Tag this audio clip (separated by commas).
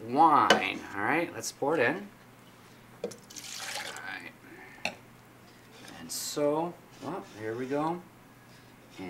Speech, inside a small room